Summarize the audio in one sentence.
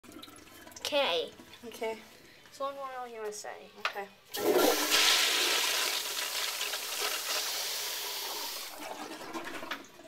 Two kids are talking and flushing a toilet